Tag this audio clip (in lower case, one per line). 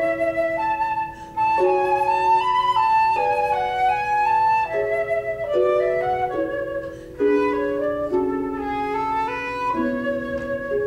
playing flute
music
flute